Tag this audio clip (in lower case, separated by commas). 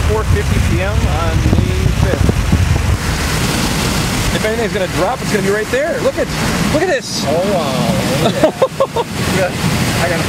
speech